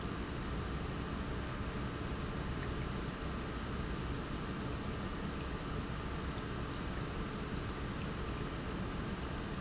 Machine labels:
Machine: pump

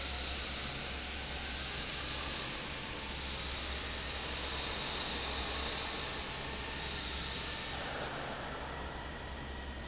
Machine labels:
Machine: fan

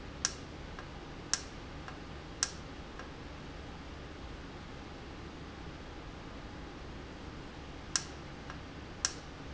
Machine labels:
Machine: valve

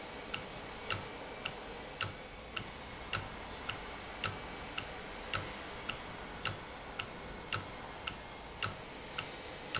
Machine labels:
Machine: valve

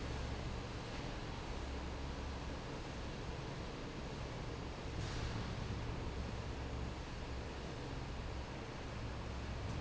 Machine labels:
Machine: fan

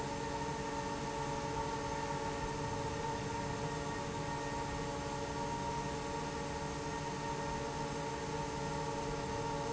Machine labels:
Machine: fan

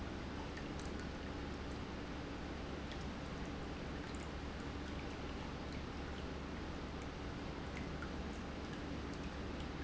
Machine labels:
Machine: pump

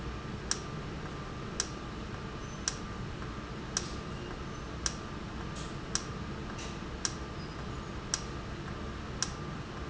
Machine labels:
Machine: valve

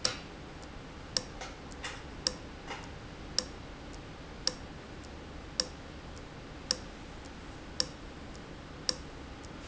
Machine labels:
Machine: valve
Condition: abnormal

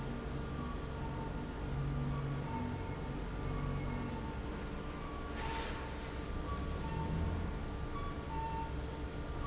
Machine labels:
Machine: fan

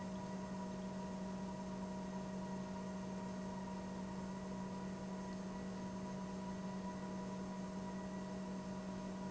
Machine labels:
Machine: pump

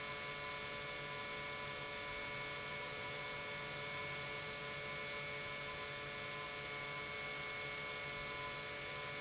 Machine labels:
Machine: pump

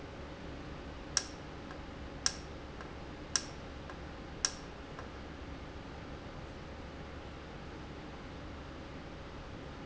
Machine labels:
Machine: valve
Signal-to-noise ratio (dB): 0 dB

